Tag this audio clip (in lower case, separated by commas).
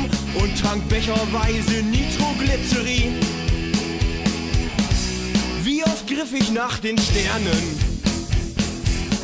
music